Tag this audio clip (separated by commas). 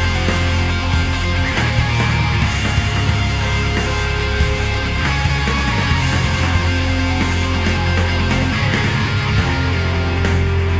Music, Progressive rock